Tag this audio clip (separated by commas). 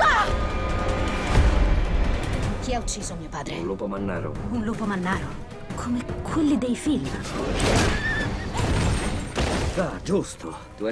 Speech, Music